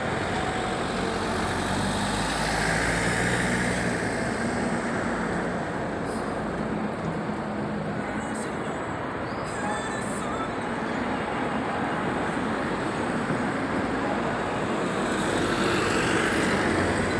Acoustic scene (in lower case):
street